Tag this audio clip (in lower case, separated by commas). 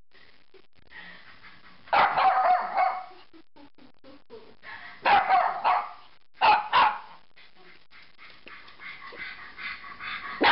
animal, bark, dog barking, speech, dog, pets